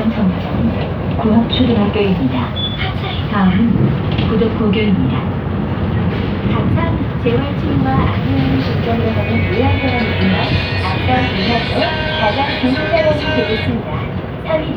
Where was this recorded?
on a bus